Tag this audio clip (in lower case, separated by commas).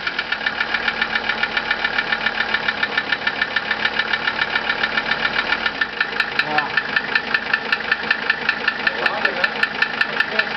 speech